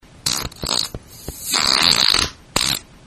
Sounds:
fart

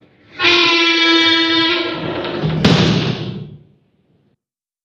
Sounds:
squeak

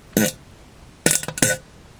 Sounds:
fart

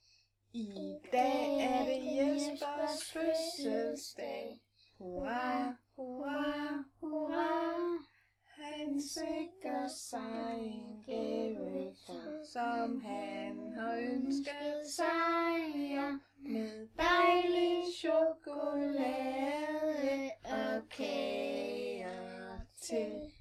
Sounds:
human voice, singing

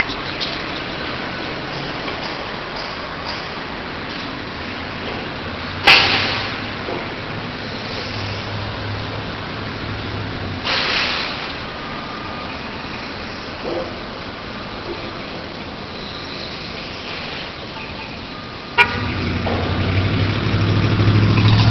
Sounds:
motor vehicle (road), vehicle

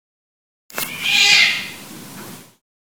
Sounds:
domestic animals, animal, cat

